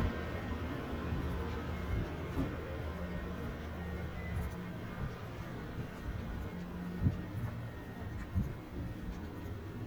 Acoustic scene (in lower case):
residential area